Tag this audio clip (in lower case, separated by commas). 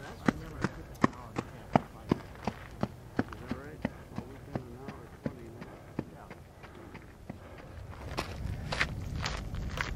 speech, footsteps